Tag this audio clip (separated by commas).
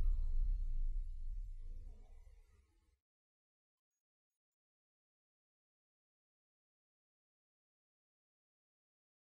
Silence